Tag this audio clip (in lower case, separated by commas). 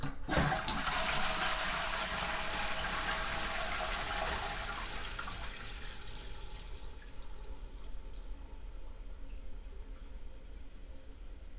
domestic sounds, toilet flush